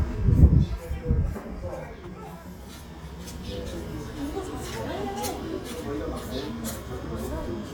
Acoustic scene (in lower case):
residential area